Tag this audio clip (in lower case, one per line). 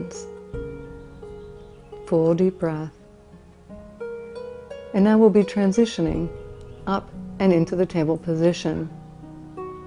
speech
music